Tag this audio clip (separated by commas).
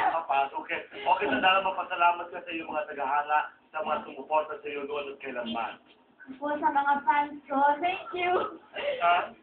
Speech